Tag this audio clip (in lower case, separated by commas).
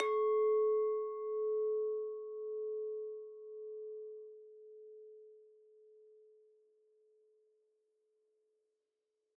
clink, glass